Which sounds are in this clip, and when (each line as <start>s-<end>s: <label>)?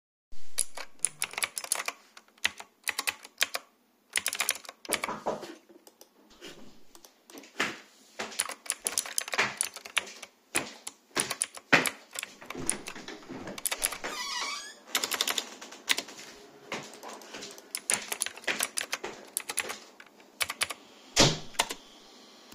0.3s-5.7s: keyboard typing
7.4s-12.2s: footsteps
8.3s-16.2s: keyboard typing
12.4s-16.4s: window
16.6s-20.1s: footsteps
17.7s-21.9s: keyboard typing
21.1s-21.5s: door